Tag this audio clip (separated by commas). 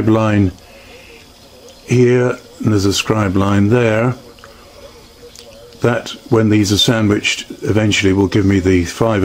Speech